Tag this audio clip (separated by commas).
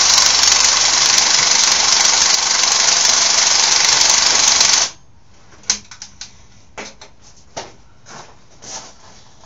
Vehicle, inside a small room, Engine